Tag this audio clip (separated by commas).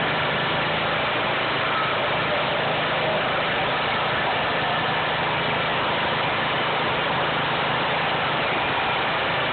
Vibration